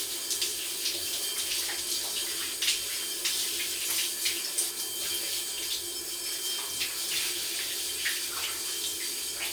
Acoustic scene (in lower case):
restroom